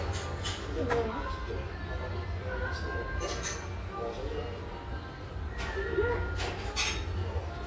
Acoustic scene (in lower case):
restaurant